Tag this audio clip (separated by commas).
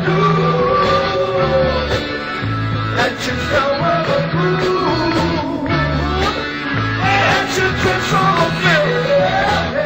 Music